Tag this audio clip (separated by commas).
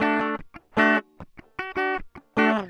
Music, Musical instrument, Guitar, Plucked string instrument